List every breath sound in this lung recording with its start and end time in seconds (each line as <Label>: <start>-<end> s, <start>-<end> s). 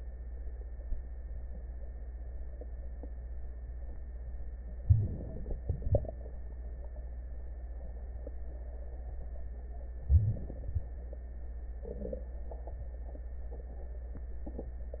Inhalation: 4.82-5.62 s, 10.07-10.76 s
Exhalation: 5.62-6.27 s, 10.73-11.03 s